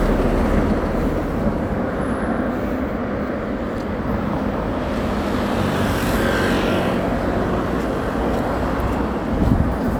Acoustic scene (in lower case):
residential area